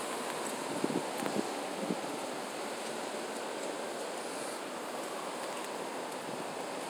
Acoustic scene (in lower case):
residential area